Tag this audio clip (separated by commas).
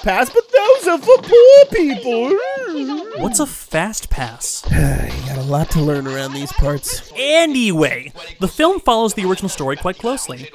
Speech